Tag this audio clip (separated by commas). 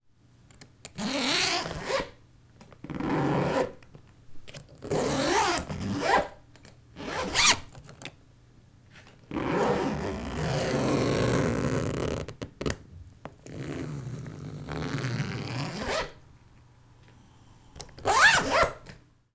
Domestic sounds, Zipper (clothing)